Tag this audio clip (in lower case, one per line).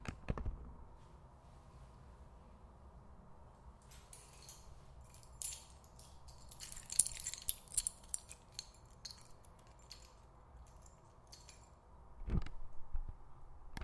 keys jangling
home sounds